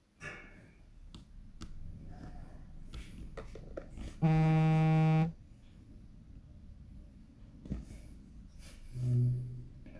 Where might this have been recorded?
in an elevator